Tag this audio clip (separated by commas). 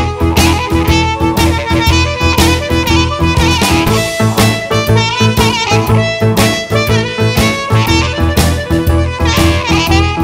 playing harmonica